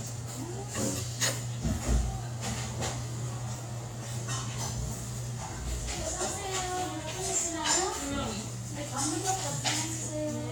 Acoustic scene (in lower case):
restaurant